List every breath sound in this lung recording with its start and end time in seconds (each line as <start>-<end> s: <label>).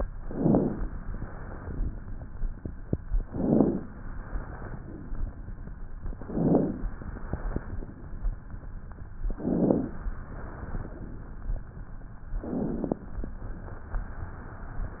0.16-0.94 s: inhalation
1.00-2.03 s: exhalation
3.22-3.88 s: inhalation
4.10-5.13 s: exhalation
6.21-6.87 s: inhalation
6.87-7.90 s: exhalation
9.29-9.95 s: inhalation
10.11-11.14 s: exhalation
12.38-13.04 s: inhalation
13.32-15.00 s: exhalation